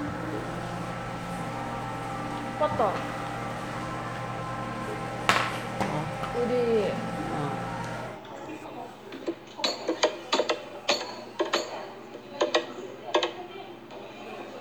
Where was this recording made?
in a cafe